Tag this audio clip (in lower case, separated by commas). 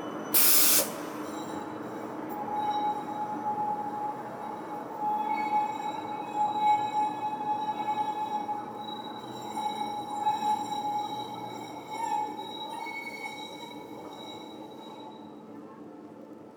screech